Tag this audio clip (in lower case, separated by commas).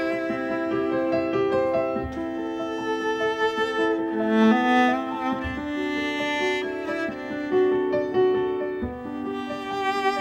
music, violin, musical instrument